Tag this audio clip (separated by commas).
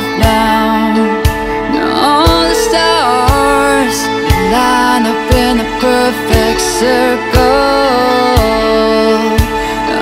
Music